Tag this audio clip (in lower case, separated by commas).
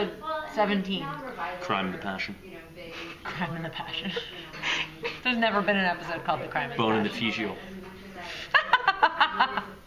inside a small room, speech